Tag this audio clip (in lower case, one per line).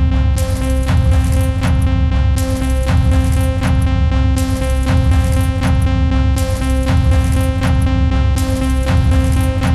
musical instrument
synthesizer
keyboard (musical)
playing synthesizer
music
sampler